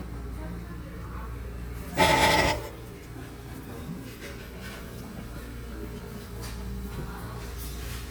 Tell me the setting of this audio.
cafe